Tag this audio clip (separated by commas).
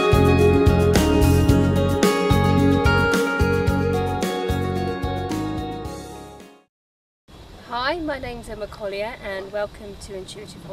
Speech, Music